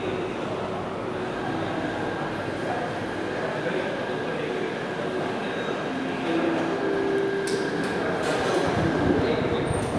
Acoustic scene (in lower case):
subway station